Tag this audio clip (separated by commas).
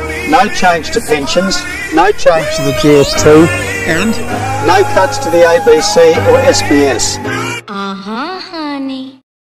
Speech, Music